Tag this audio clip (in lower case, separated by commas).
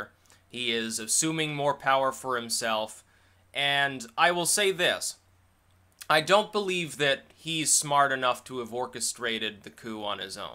speech